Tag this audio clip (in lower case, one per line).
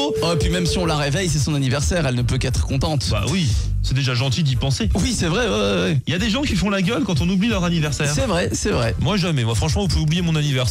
music
speech